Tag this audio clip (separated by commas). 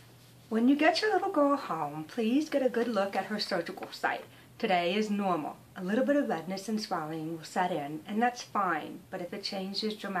Speech